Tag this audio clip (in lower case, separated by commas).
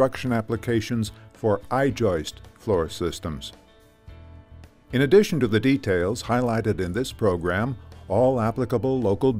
speech, music